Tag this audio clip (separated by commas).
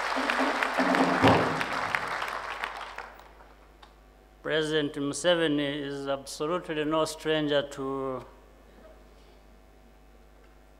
Speech, man speaking, Narration